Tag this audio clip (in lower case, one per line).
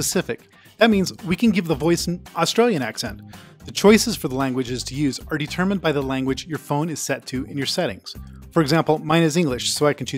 speech
music